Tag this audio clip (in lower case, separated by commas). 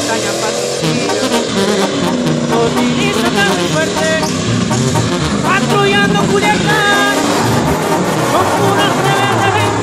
car, music, vehicle